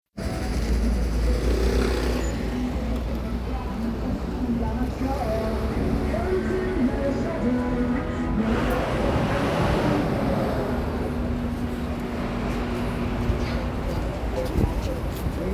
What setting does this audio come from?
street